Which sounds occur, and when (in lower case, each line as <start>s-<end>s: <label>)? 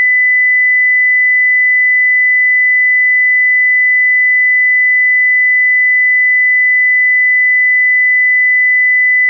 0.0s-9.2s: sine wave